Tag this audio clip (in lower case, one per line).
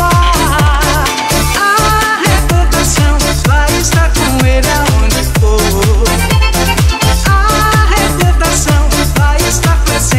dance music